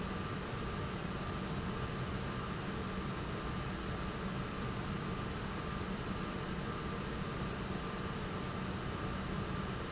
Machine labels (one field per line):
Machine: pump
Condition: normal